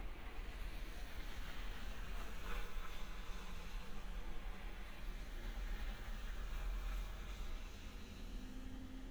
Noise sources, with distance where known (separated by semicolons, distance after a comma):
engine of unclear size